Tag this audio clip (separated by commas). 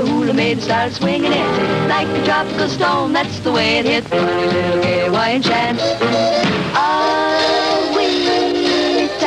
Music